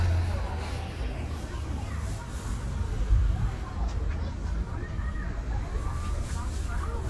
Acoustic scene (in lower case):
residential area